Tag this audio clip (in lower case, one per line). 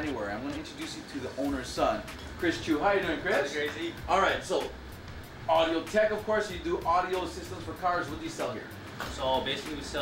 music
speech